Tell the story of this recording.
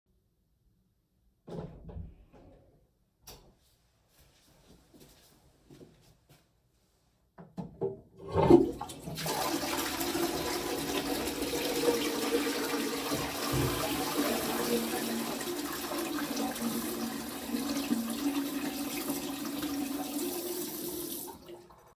I go in the bathroom, I switch the lights on. I flush the toilet and I turn the tap water on.